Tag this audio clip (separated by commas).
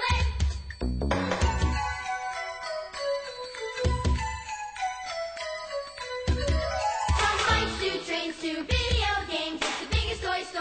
Music